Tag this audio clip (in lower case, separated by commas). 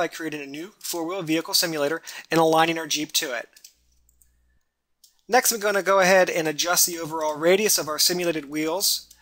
speech